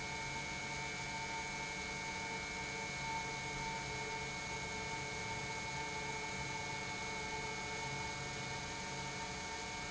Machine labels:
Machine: pump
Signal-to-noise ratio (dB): 0 dB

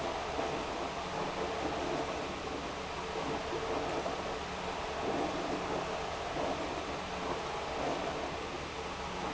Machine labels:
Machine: pump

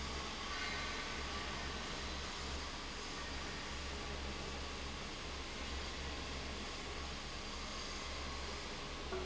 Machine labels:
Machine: fan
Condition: abnormal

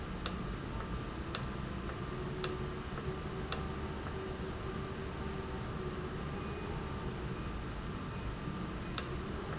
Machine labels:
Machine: valve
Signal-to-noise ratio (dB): -6 dB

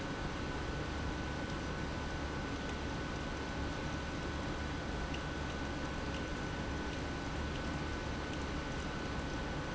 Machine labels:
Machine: pump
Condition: abnormal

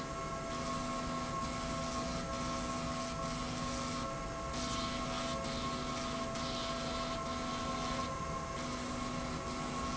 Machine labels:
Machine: slide rail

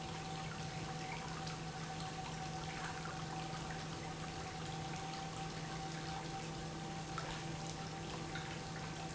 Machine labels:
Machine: pump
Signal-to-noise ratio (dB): 0 dB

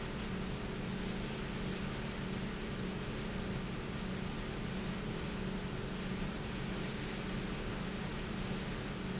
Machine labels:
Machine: pump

